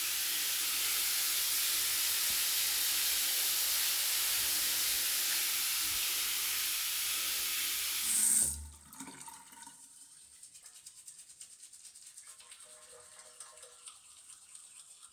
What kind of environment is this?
restroom